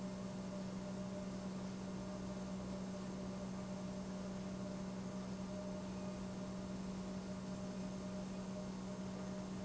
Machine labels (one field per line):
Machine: pump